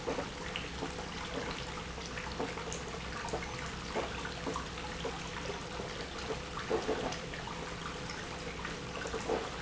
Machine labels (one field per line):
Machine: pump